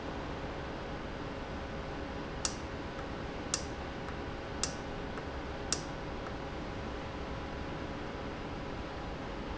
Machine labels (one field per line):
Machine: valve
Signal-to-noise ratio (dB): -6 dB